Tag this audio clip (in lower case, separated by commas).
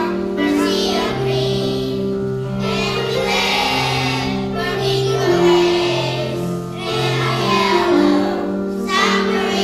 child singing